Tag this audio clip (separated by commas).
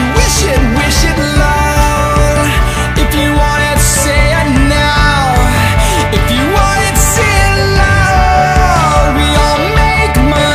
Independent music